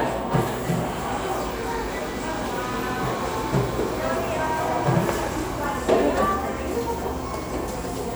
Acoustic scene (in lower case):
cafe